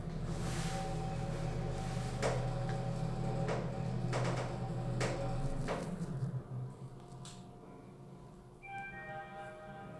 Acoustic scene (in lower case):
elevator